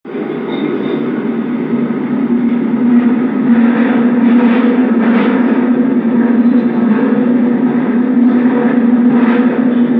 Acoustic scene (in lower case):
subway train